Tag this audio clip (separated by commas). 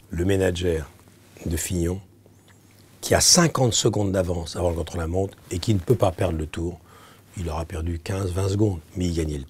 Speech